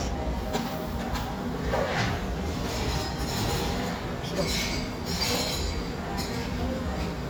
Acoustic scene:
cafe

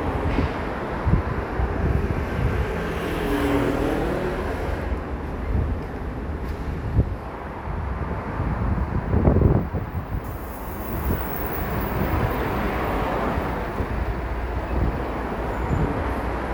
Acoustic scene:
street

